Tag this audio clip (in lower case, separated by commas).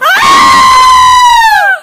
screaming, human voice